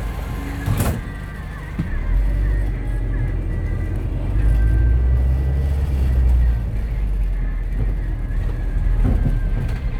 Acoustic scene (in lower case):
bus